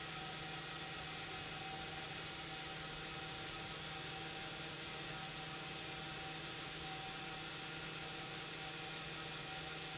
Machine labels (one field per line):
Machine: pump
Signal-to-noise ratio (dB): 6 dB